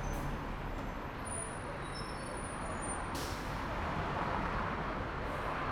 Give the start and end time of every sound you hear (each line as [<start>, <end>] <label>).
[0.00, 0.22] bus compressor
[0.00, 3.30] bus brakes
[0.00, 5.72] bus
[0.98, 5.72] people talking
[2.23, 5.72] car
[2.23, 5.72] car wheels rolling
[3.12, 4.07] bus compressor
[3.40, 5.72] bus engine idling
[5.25, 5.65] bus compressor